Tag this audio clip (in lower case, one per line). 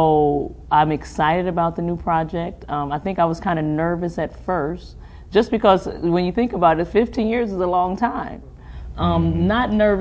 speech